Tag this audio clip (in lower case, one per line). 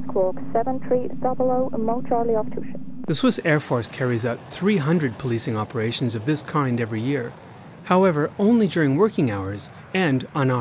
speech
vehicle